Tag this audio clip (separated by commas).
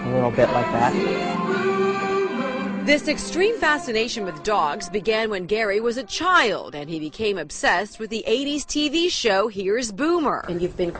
Speech, Music